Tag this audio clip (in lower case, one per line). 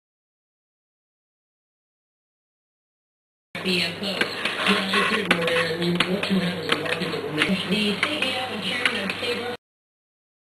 speech